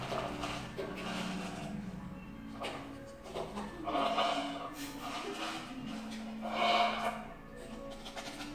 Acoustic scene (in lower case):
cafe